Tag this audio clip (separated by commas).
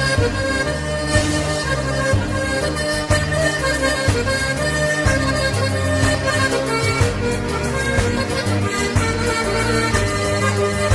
Music, Traditional music